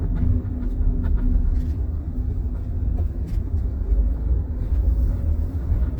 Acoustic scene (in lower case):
car